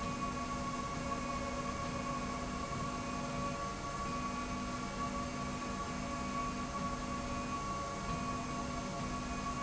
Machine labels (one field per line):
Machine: slide rail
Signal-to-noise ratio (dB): -6 dB